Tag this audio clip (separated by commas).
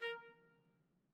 Musical instrument, Music, Brass instrument, Trumpet